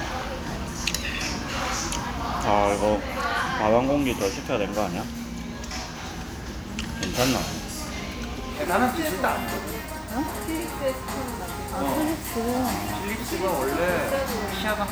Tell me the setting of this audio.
restaurant